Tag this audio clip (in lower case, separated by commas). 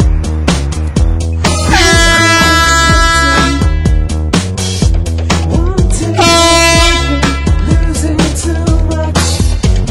music, truck horn